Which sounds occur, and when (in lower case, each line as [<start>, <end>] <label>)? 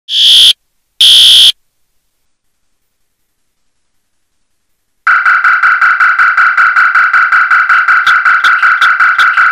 [0.09, 0.54] fire alarm
[0.09, 9.51] mechanisms
[0.99, 1.55] fire alarm